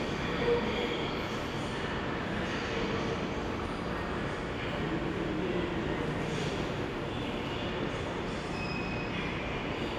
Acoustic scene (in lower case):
subway station